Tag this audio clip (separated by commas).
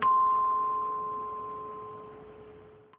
Musical instrument, Music, Percussion